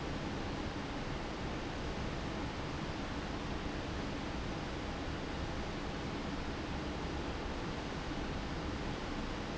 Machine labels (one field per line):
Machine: fan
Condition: abnormal